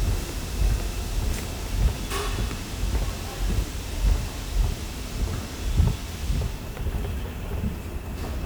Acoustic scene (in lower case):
subway station